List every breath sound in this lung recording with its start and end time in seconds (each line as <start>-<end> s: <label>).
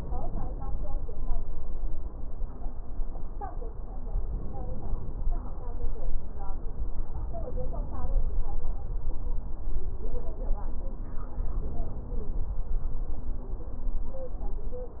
4.23-5.33 s: inhalation
7.21-8.31 s: inhalation
11.49-12.59 s: inhalation